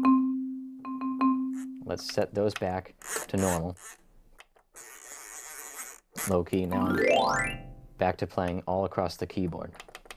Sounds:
musical instrument
music
keyboard (musical)
speech
inside a small room

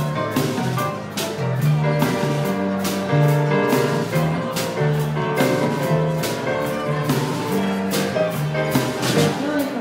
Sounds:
violin
bowed string instrument

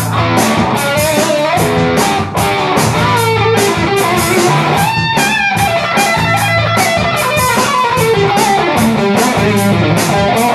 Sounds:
music
musical instrument
guitar
electric guitar
plucked string instrument

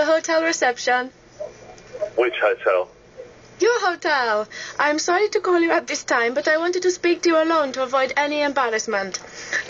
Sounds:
radio
speech

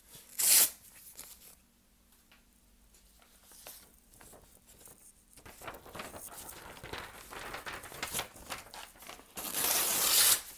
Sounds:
ripping paper

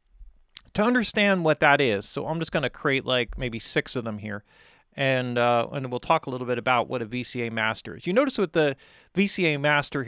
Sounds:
speech

